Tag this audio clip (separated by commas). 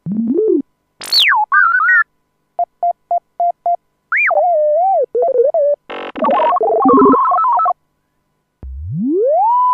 Musical instrument, Cacophony, Music, Synthesizer